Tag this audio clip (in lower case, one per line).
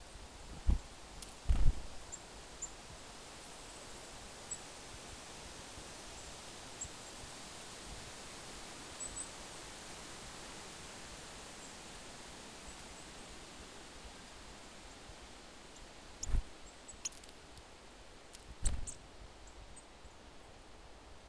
wild animals
bird
animal